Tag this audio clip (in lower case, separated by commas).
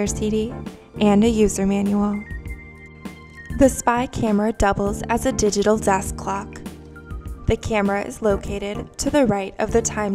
speech, music